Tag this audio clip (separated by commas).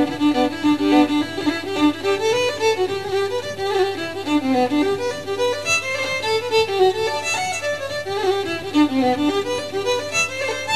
fiddle, Musical instrument, Music